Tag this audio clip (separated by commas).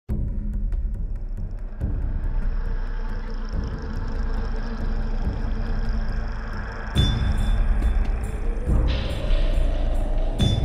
Music